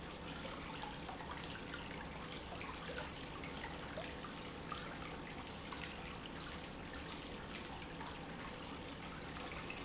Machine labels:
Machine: pump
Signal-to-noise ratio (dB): 6 dB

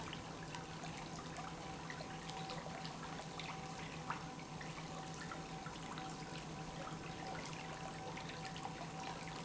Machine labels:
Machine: pump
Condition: normal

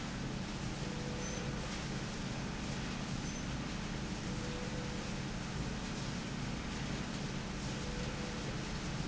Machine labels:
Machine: slide rail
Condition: normal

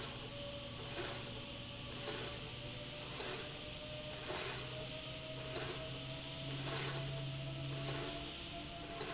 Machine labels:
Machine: slide rail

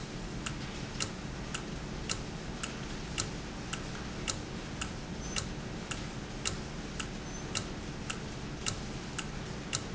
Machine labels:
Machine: valve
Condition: normal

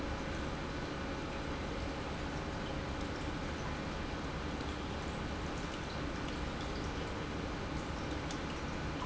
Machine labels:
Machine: pump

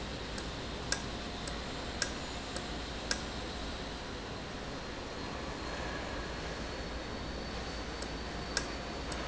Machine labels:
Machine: valve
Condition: normal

